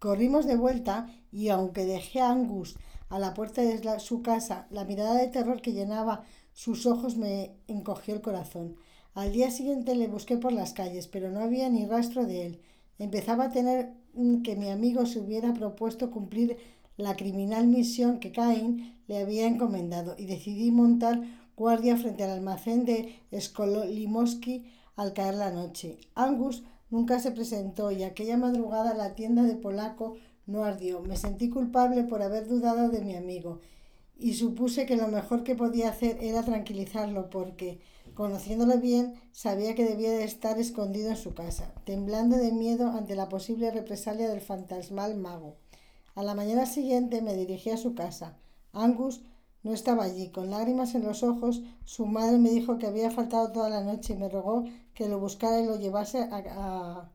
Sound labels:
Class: speech